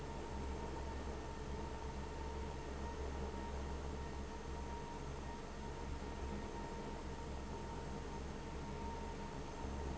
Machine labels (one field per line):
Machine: fan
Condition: abnormal